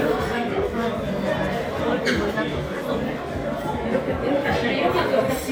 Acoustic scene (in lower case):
restaurant